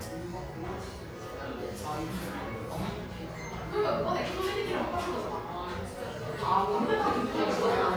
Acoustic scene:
cafe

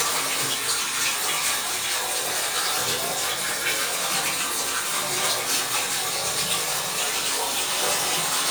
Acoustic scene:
restroom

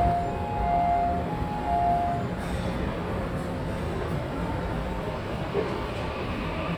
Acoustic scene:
subway station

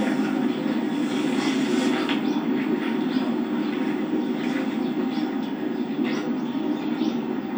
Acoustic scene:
park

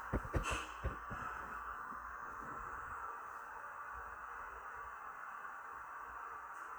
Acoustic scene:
elevator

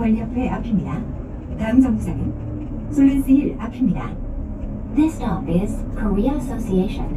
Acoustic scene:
bus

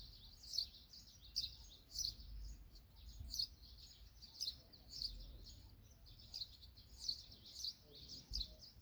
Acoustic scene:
park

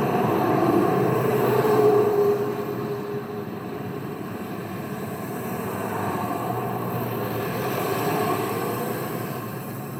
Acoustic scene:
street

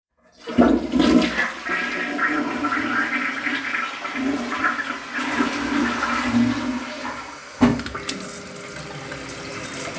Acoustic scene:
restroom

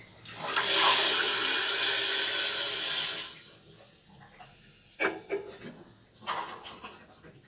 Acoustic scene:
restroom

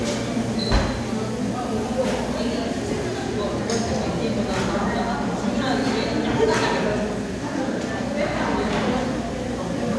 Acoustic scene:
crowded indoor space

